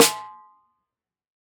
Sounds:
snare drum
musical instrument
drum
percussion
music

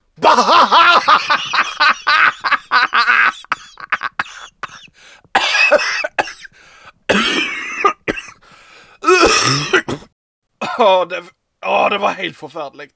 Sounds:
laughter
cough
human voice
respiratory sounds

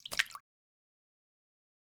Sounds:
splatter
liquid

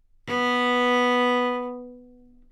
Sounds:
musical instrument
music
bowed string instrument

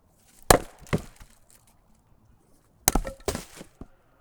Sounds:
wood

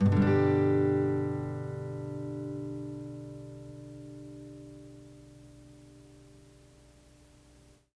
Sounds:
musical instrument
guitar
plucked string instrument
music

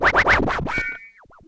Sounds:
scratching (performance technique)
musical instrument
music

